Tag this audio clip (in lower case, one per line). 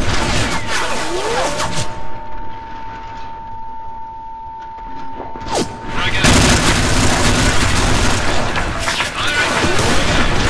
gunshot
machine gun